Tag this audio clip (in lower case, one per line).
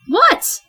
human voice
female speech
speech